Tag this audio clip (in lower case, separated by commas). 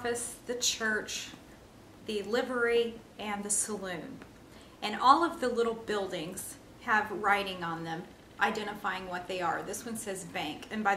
speech, inside a small room